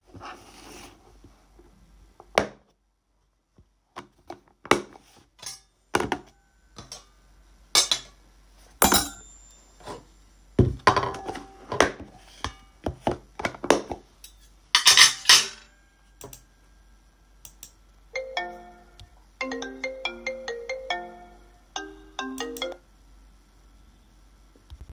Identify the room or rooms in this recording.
bedroom